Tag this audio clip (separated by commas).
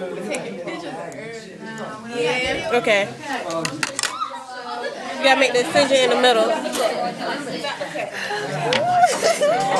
Speech